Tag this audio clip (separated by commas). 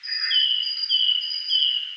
Bird, Animal, Wild animals